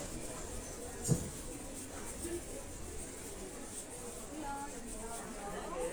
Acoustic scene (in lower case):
crowded indoor space